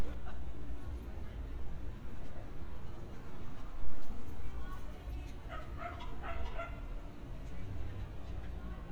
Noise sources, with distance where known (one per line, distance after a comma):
person or small group talking, far
dog barking or whining, far